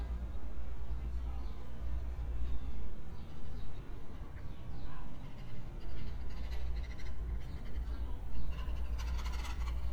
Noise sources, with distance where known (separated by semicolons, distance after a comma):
background noise